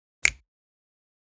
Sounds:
finger snapping, hands

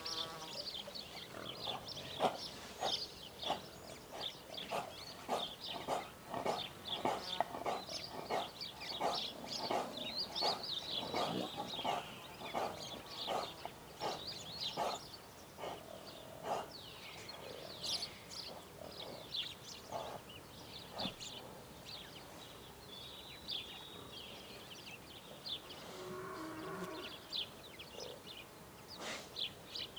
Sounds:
livestock, animal

